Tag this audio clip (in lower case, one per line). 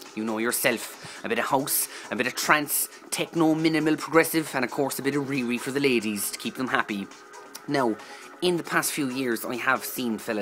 music
speech